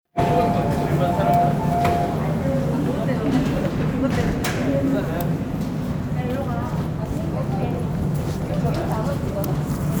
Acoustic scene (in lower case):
subway station